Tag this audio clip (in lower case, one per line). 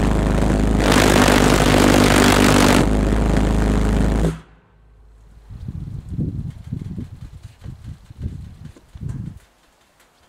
engine